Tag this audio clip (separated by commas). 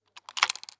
home sounds, Coin (dropping)